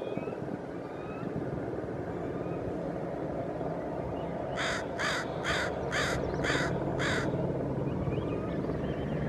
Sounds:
crow cawing

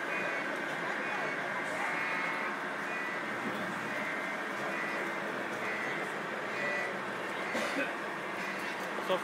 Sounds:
Speech

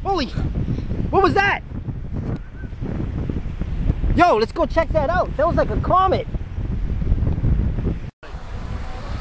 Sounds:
Wind noise (microphone), Wind

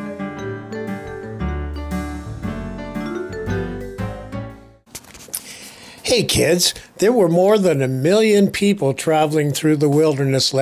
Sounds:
Music, Speech

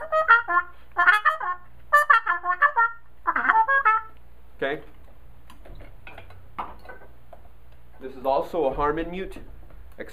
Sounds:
Trumpet, Brass instrument

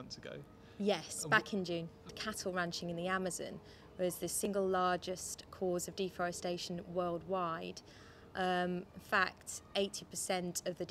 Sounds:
Speech

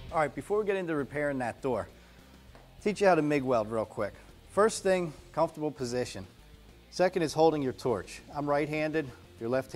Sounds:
Speech

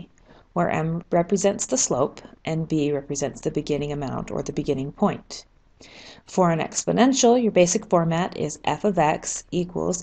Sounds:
Speech

